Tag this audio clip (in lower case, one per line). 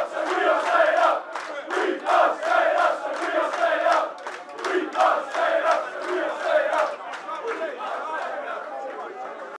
speech